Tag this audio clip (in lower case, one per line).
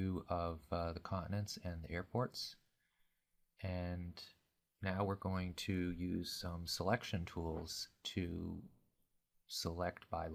speech